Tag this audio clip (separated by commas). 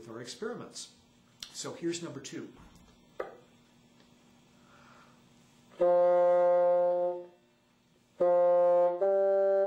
playing bassoon